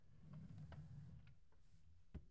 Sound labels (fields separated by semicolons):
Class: drawer; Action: closing; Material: wooden